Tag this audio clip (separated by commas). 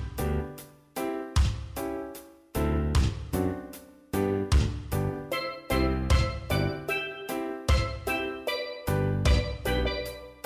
Music